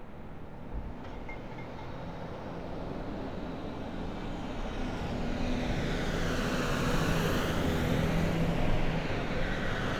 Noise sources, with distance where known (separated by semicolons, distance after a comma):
medium-sounding engine, near